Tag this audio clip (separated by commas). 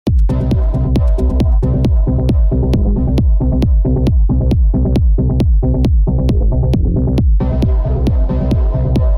House music, Trance music, Electronic music, Electronica, Music